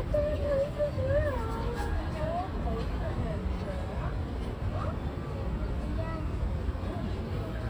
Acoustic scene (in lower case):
residential area